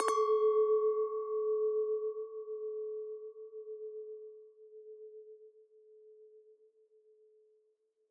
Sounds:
clink, Glass

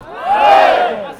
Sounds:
Human voice, Shout

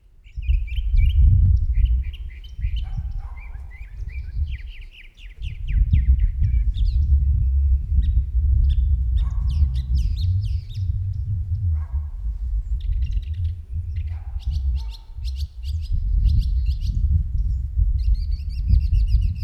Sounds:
Wild animals, Bird, Animal

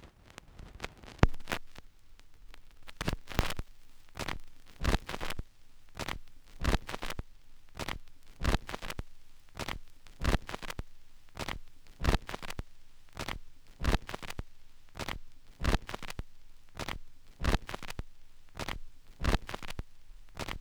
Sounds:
Crackle

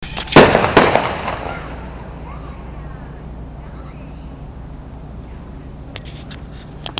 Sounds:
Explosion, gunfire, Fireworks

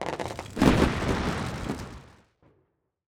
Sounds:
Explosion, Fireworks, Fire

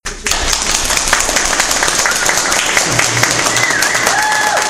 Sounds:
Human group actions, Applause

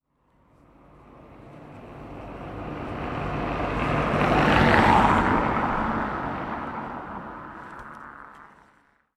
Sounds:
Car passing by, Car, Motor vehicle (road), Engine, Vehicle

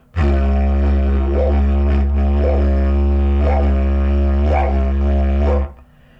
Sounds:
Music, Musical instrument

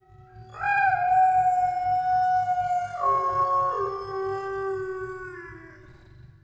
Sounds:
pets, Dog, Animal

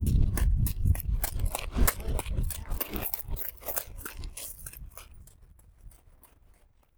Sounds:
Run

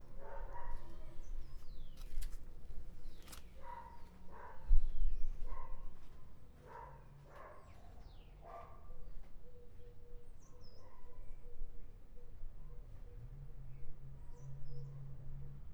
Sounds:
Animal, Dog, Domestic animals

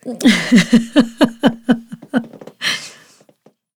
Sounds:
Laughter, Giggle, Human voice

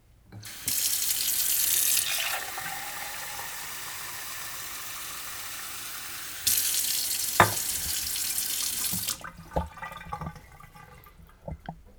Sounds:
Sink (filling or washing), Fill (with liquid), home sounds, Liquid

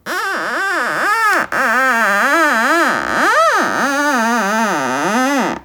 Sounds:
Screech

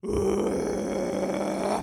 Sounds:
Human voice, Screaming

